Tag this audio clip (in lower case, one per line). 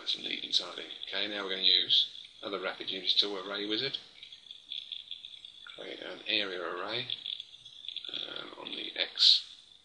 inside a small room
speech